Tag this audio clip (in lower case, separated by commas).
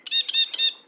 wild animals, bird, animal